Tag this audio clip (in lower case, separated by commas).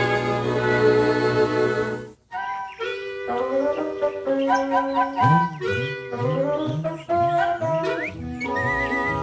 music